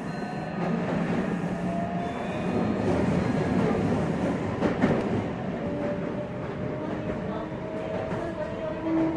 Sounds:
outside, urban or man-made, Speech, Train, Vehicle

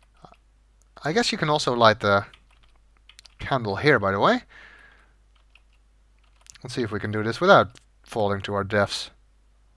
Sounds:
Speech

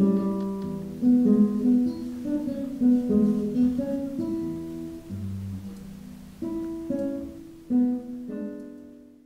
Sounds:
Music

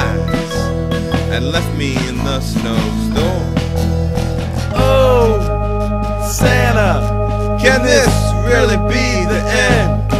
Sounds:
Music

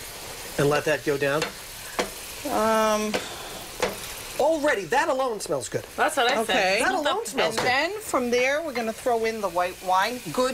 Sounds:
inside a small room, Speech

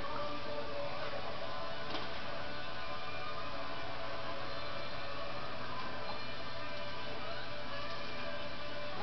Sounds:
Music

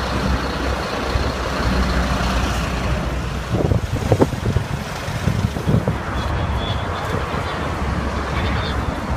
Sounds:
Motor vehicle (road), Traffic noise, Speech, Truck, Vehicle

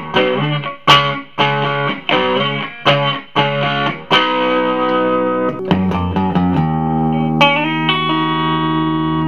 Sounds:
Music, Distortion

